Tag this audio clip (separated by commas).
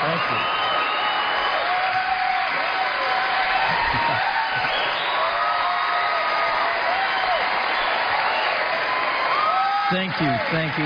Male speech, Speech